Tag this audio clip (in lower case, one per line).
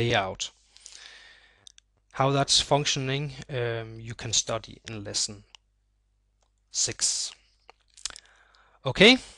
speech